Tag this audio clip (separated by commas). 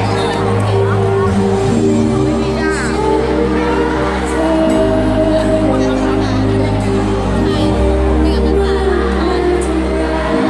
Speech, Music